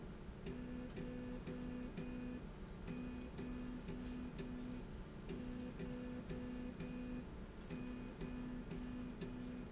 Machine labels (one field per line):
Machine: slide rail